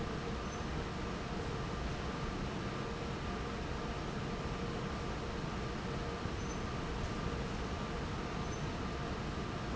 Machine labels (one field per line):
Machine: fan